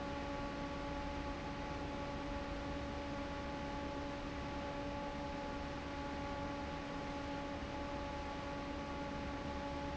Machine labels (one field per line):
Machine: fan